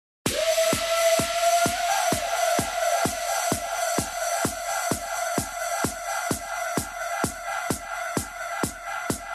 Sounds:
music
house music

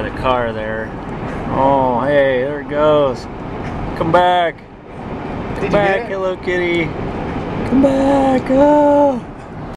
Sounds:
vehicle
car passing by
car
speech

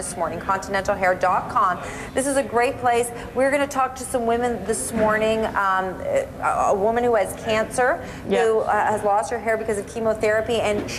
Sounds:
speech

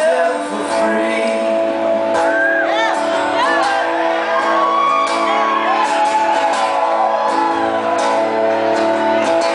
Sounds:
male singing
music

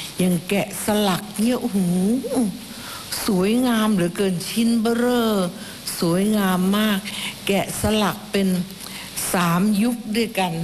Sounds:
woman speaking
speech

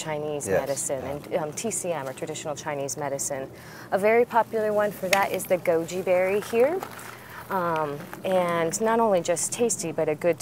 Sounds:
female speech

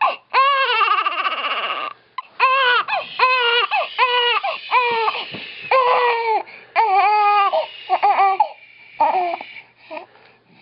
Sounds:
infant cry
baby crying

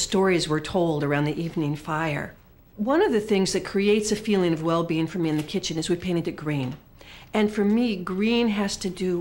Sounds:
speech

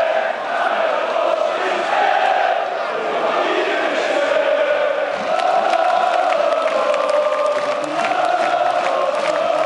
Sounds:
speech

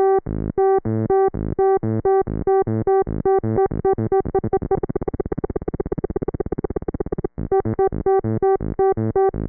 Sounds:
synthesizer

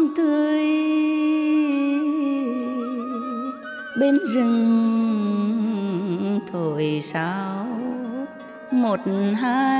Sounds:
music

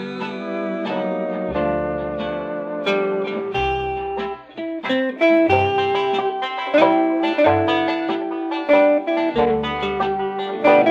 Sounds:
music
plucked string instrument

